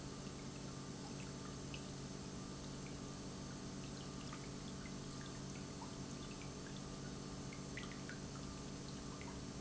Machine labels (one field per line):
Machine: pump